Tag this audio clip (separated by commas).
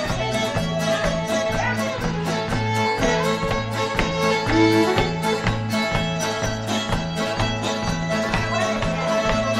Musical instrument, Music, fiddle